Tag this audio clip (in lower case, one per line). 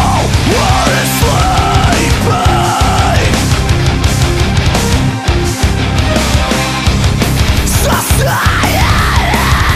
music